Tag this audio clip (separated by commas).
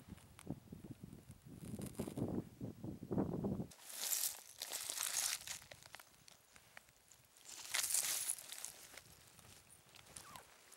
outside, rural or natural